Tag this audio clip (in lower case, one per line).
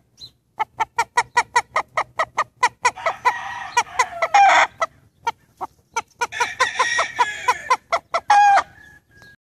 fowl
cluck
chicken crowing
chicken
crowing